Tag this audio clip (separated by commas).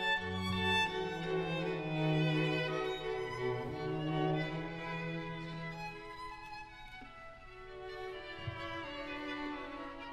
Violin, playing violin, Music, Musical instrument